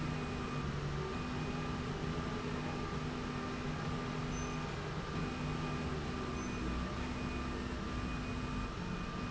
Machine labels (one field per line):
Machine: slide rail